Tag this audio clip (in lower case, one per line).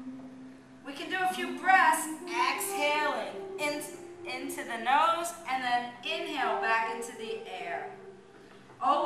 music
speech